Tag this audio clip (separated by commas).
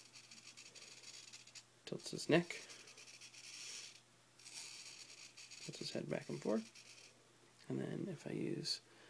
inside a small room, Speech